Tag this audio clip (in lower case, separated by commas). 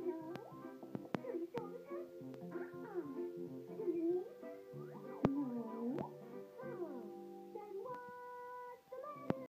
music, speech